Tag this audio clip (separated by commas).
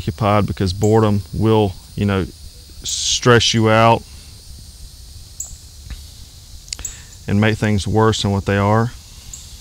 Speech